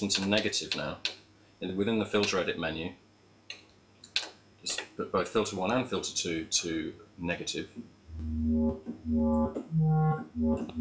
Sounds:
typing, keyboard (musical), music, computer keyboard, musical instrument, synthesizer

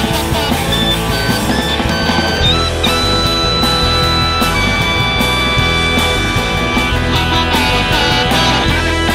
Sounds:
psychedelic rock

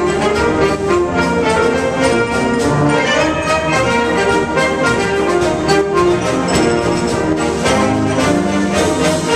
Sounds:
music, orchestra

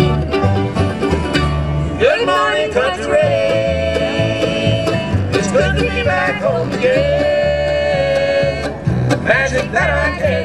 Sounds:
bluegrass, music

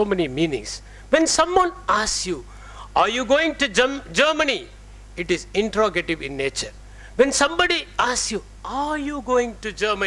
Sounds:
male speech, narration, speech

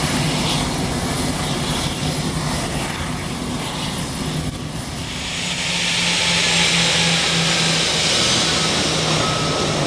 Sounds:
aircraft, vehicle, aircraft engine, outside, urban or man-made, fixed-wing aircraft

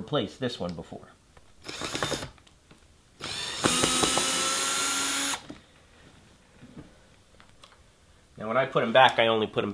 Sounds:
speech, inside a small room

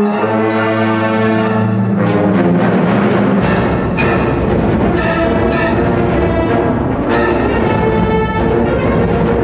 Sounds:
music

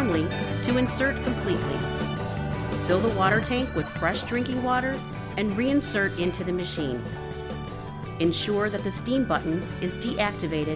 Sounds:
speech, music

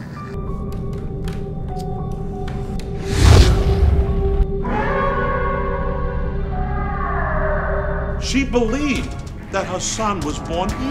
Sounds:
speech, inside a small room, music, scary music

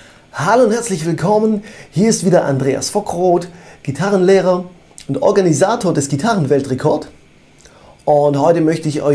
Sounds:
speech

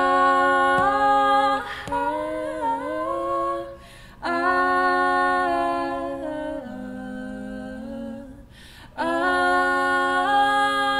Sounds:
singing

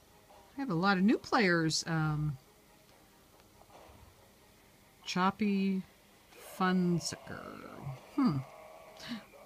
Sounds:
speech

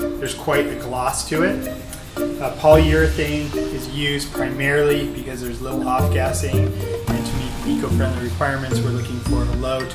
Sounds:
music, speech

